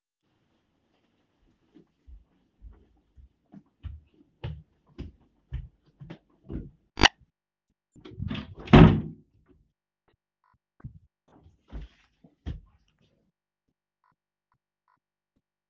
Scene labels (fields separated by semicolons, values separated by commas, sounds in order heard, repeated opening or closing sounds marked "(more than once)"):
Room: living room; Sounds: footsteps, door